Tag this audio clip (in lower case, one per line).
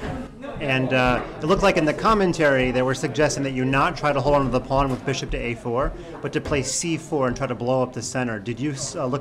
speech